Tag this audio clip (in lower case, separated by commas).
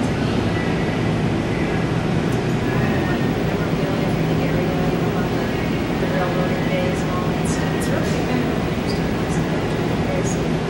speech